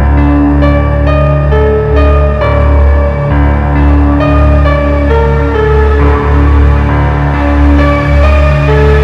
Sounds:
dubstep
music
electronic music

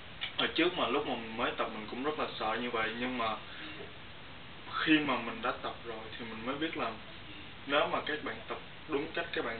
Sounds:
speech

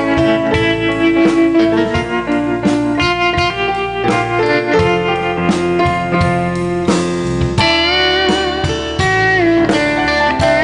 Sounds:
inside a large room or hall
music

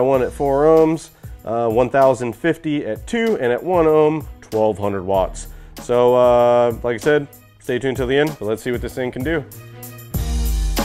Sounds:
music
speech

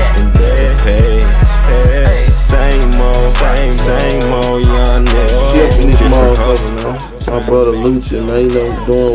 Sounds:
music
speech

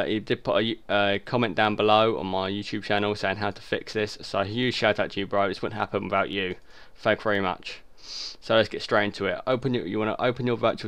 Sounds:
speech

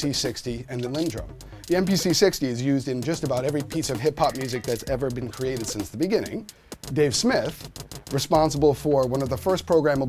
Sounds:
drum machine
speech
music

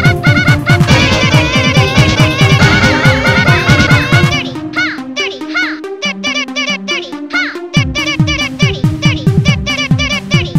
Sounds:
electronic music
music

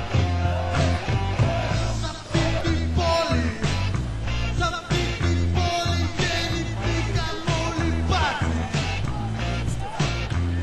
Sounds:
music

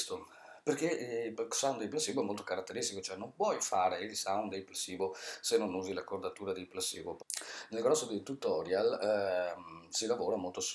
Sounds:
speech

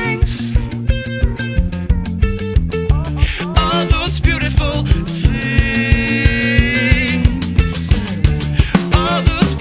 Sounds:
music

